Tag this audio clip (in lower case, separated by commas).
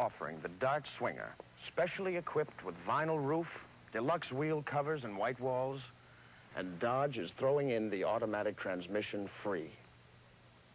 speech